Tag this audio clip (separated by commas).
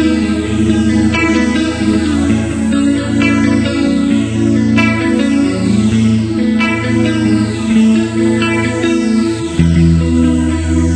Electric guitar, Musical instrument, Plucked string instrument, Guitar, Music